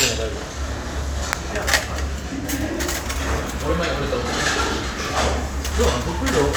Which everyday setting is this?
crowded indoor space